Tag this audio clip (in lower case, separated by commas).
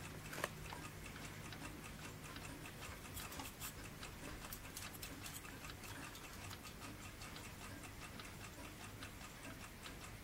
tick-tock